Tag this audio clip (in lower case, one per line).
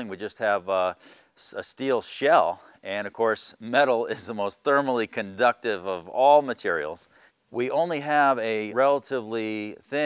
speech